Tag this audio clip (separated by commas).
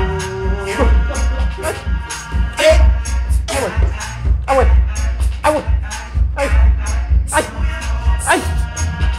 Music